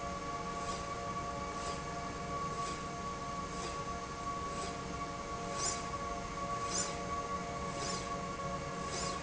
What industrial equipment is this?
slide rail